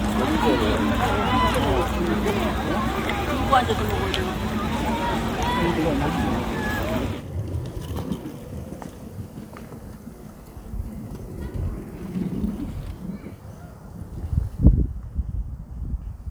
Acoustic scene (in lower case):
park